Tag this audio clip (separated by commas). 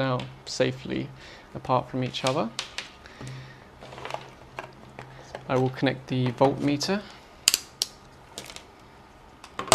Speech